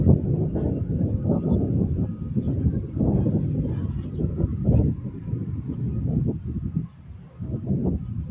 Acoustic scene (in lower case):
park